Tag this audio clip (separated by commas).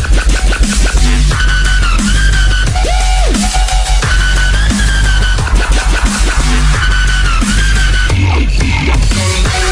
Electronic music, Dubstep, Music